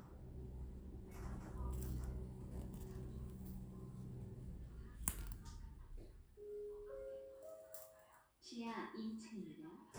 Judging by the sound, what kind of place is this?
elevator